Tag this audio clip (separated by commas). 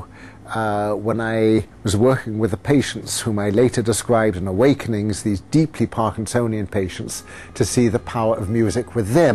Speech